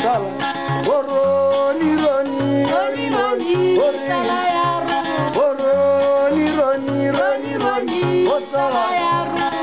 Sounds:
strum
music
guitar
plucked string instrument
acoustic guitar
musical instrument

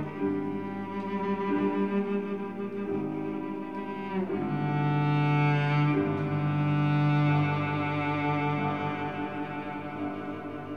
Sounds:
music
cello
classical music
bowed string instrument
piano
musical instrument

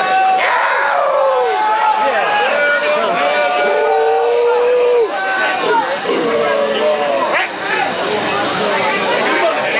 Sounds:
speech

